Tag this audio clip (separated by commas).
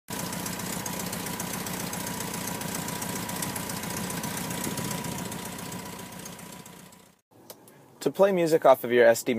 Vehicle, Speech